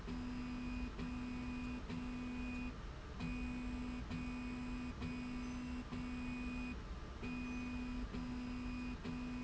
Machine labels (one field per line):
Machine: slide rail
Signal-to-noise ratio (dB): 6 dB